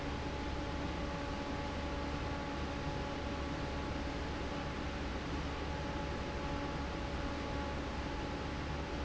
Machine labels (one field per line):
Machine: fan